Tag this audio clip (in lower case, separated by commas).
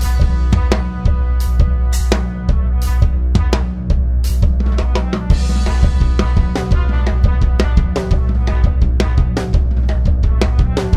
musical instrument, music, drum kit, drum, bass drum